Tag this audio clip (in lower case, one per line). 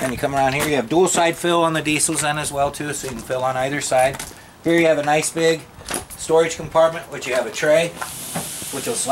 speech
walk